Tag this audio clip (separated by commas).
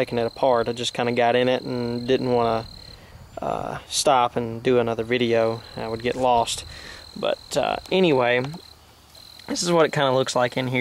Speech